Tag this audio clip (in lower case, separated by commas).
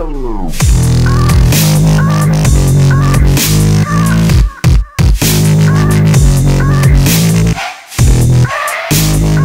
dubstep, music